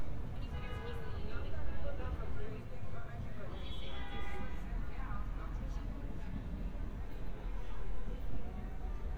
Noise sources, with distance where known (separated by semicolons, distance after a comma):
car horn, far; person or small group talking